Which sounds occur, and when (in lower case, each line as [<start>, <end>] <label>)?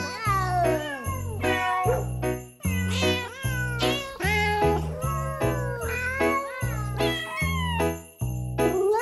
[0.00, 1.90] meow
[0.00, 9.01] music
[1.83, 2.08] bark
[2.58, 4.88] meow
[4.99, 5.87] singing
[5.84, 7.84] meow